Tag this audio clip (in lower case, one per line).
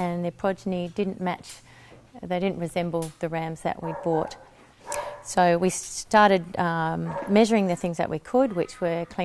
speech